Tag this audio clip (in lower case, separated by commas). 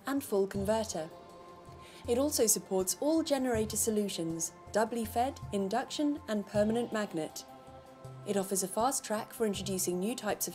speech, music